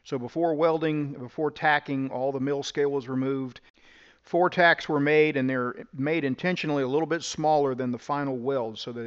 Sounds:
arc welding

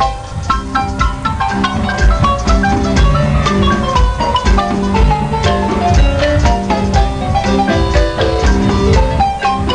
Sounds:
playing marimba, percussion, marimba, musical instrument, music

